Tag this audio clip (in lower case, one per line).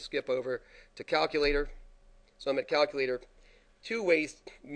speech